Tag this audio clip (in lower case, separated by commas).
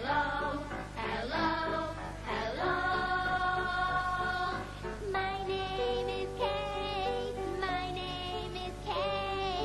music